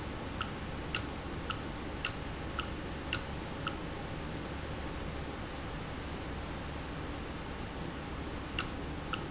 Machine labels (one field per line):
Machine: valve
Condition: normal